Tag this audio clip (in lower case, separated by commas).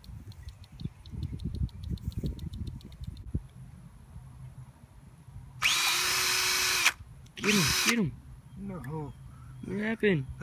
power tool, tools